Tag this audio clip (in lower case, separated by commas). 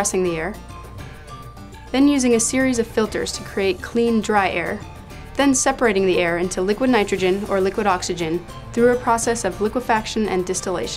speech, music